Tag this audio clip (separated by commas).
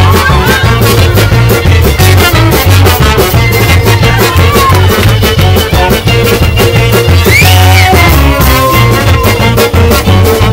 Music